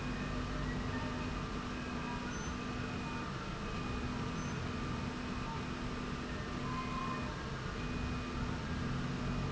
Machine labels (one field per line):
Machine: slide rail